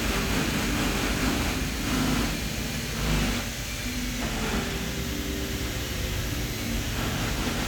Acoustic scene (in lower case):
cafe